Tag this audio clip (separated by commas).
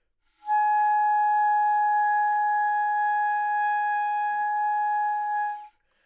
Music, Wind instrument, Musical instrument